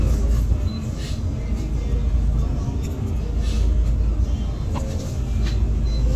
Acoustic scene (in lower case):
bus